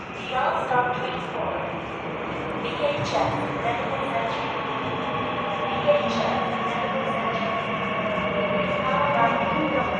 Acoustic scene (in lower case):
subway station